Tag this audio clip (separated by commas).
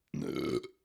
Human voice, eructation